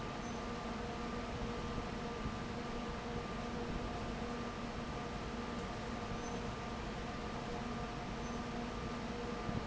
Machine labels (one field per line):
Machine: fan